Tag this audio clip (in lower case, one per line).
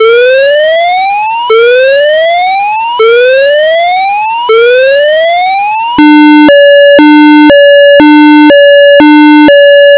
alarm